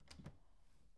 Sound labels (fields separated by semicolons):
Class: door; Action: opening